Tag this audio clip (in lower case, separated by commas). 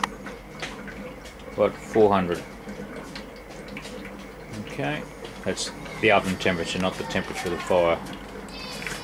speech